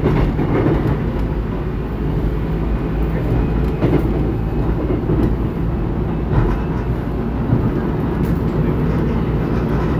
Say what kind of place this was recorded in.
subway train